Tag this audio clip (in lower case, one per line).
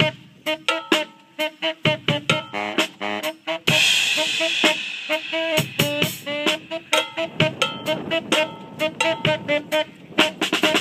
music